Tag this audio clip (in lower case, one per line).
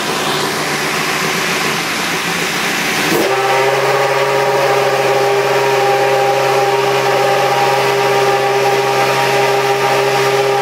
motor vehicle (road)
car
vehicle